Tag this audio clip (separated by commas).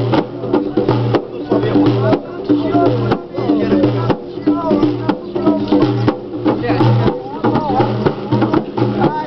Speech, outside, urban or man-made, Music